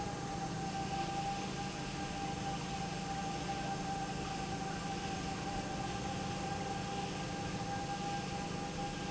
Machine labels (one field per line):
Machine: pump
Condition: normal